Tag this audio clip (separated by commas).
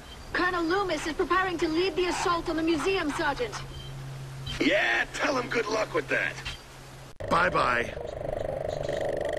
outside, urban or man-made, Speech, inside a small room